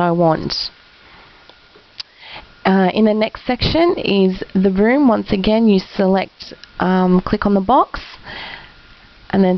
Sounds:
speech

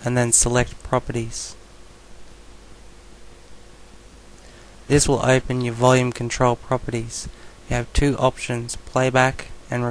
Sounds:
speech

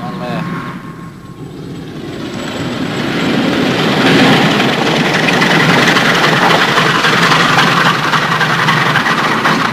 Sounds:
speech

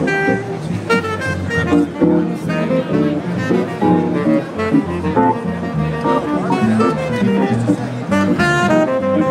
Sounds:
hammond organ

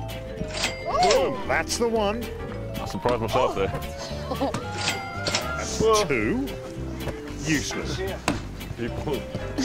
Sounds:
music, speech

